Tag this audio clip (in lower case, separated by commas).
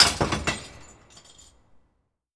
glass, crushing, shatter